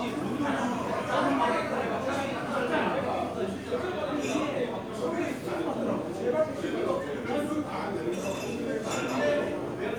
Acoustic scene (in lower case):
crowded indoor space